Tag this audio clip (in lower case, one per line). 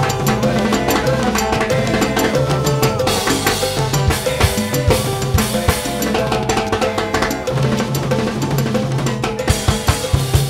music
salsa music